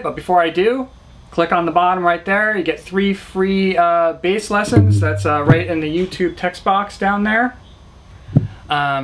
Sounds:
speech

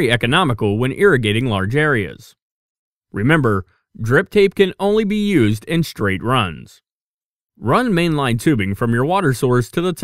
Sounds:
speech

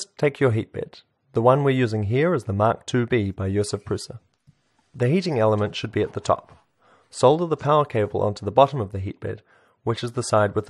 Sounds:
speech

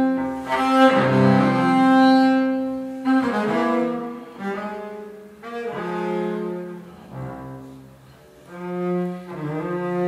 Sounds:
bowed string instrument
music
classical music

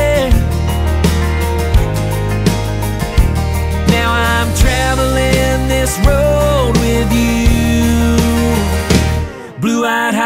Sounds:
music
bluegrass
dance music
soundtrack music
blues
country

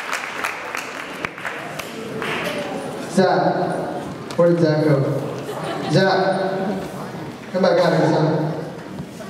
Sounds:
inside a large room or hall
speech

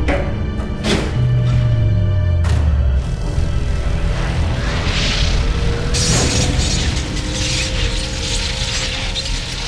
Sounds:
sound effect
music

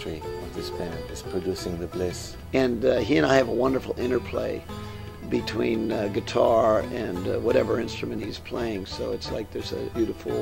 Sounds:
music
speech

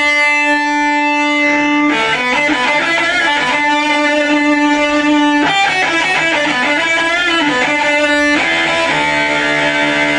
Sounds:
music
guitar
plucked string instrument
musical instrument
acoustic guitar
strum

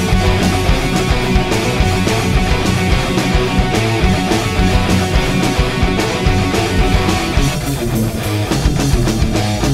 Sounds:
music
heavy metal

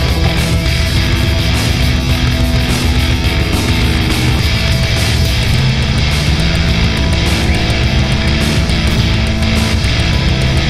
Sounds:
music
angry music

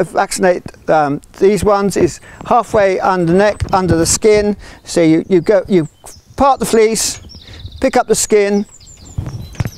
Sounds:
speech

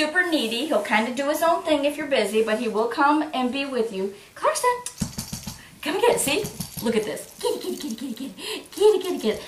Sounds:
speech

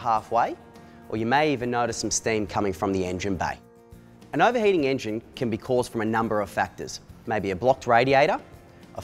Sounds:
speech

